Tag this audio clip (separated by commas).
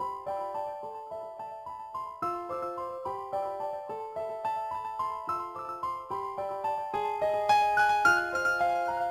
Music, Soundtrack music, Jazz